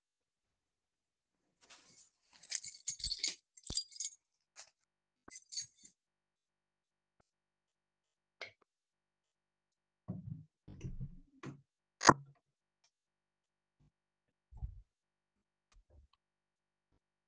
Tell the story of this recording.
I approached the door with my keys in hand causing the keychain to jangle. I flicked the light switch before opening the door and passing through.